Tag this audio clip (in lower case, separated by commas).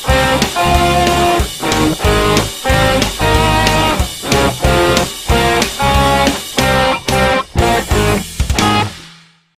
musical instrument, plucked string instrument, music, guitar